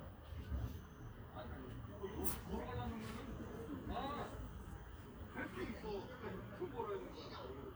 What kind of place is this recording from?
park